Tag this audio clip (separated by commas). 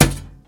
thud